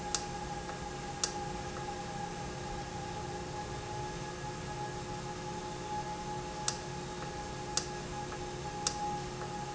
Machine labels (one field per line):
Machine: valve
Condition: normal